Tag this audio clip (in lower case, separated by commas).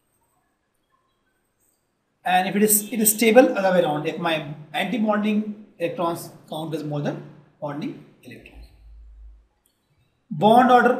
speech